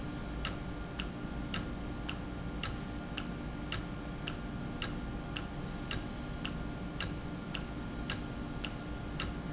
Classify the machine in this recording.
valve